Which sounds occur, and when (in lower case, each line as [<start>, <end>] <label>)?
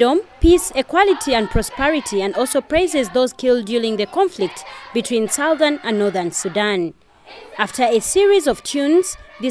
[0.00, 4.54] female speech
[0.00, 6.55] child singing
[0.00, 9.50] background noise
[4.94, 6.97] female speech
[6.97, 7.24] breathing
[7.16, 9.50] child singing
[7.54, 9.14] female speech
[9.38, 9.50] female speech